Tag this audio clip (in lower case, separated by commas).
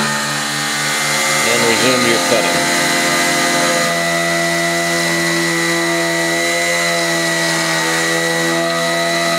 tools, speech